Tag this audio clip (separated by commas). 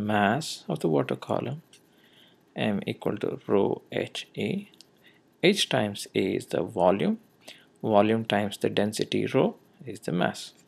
Speech